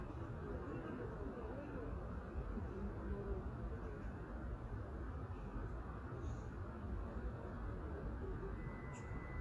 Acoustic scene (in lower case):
residential area